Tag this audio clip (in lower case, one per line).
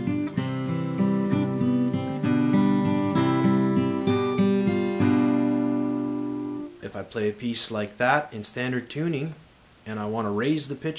speech
strum
guitar
plucked string instrument
musical instrument
music